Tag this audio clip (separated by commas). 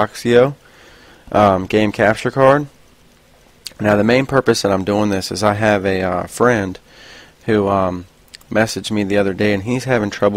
Speech